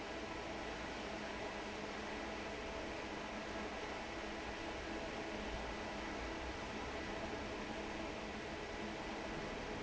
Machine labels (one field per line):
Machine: fan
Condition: normal